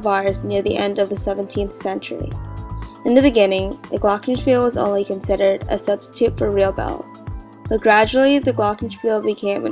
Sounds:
glockenspiel
marimba
mallet percussion

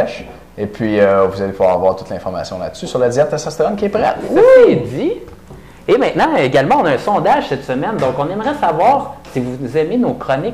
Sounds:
speech

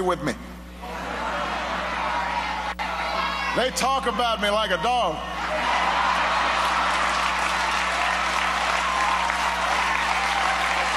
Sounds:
speech

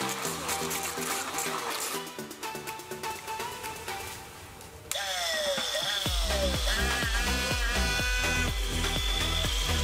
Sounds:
pumping water

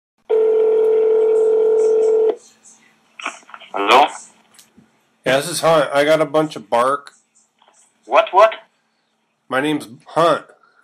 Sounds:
radio

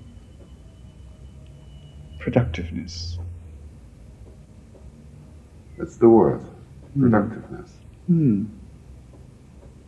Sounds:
speech

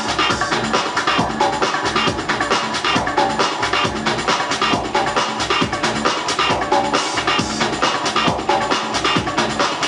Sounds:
techno
music
electronic music

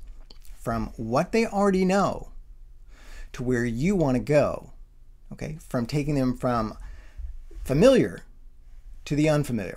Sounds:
speech

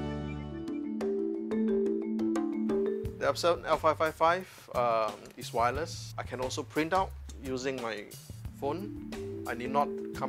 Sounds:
music
speech

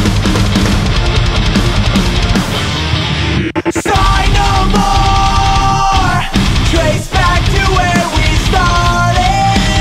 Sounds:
disco
new-age music
music

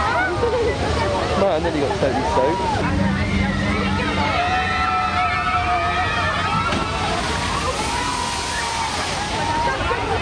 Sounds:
water

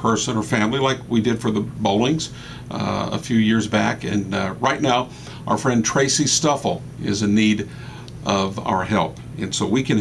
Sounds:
speech

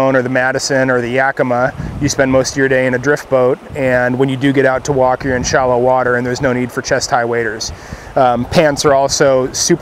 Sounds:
speech

